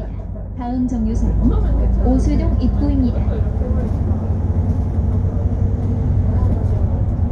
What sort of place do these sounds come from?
bus